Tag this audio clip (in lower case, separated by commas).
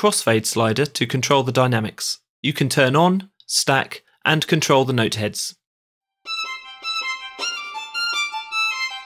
music, speech, musical instrument